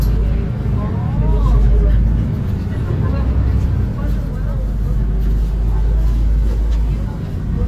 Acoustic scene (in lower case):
bus